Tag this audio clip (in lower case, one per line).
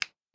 hands
finger snapping